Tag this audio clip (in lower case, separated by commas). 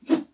whoosh